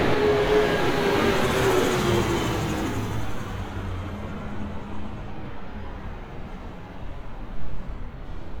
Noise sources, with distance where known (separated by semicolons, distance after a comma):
large-sounding engine